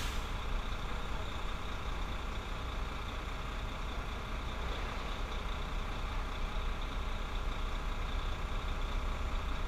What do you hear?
engine of unclear size